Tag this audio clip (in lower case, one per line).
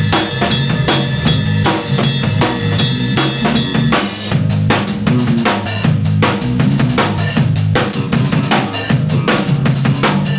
playing bass drum